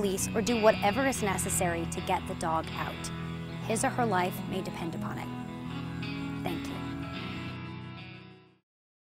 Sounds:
speech
music

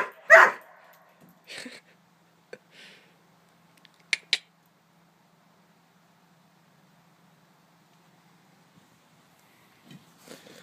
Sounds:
animal

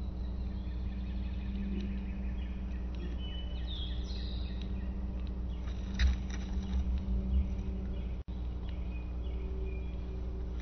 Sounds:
bird
turkey gobbling

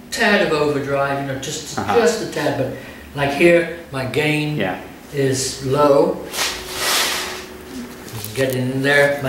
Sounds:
speech

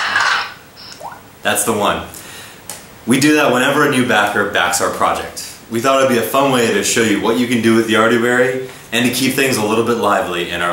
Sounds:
speech
inside a small room

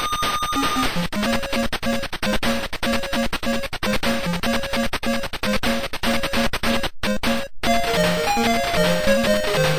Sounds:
music

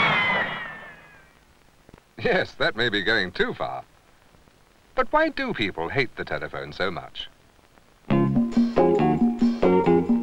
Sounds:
music
speech

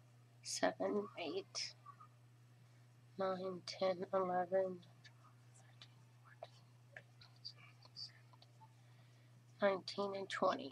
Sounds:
inside a small room
speech

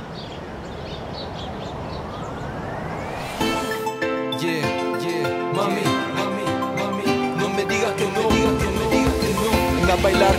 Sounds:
music

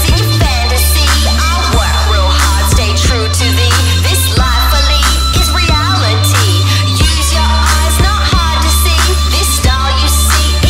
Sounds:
music

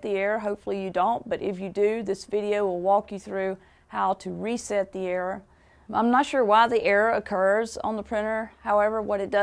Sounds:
speech

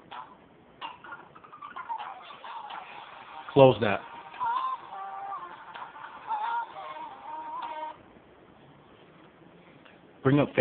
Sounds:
male speech
music
speech

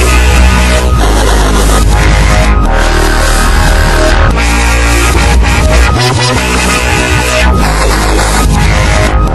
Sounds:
dubstep
music
electronic music

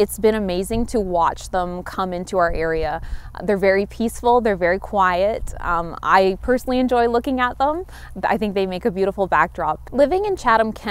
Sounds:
speech

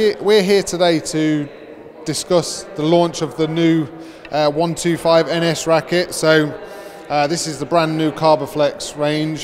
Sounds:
playing squash

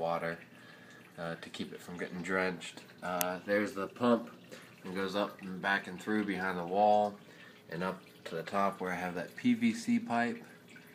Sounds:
raining
raindrop
speech

